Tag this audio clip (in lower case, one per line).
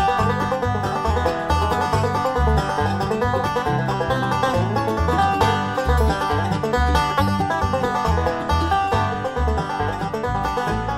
music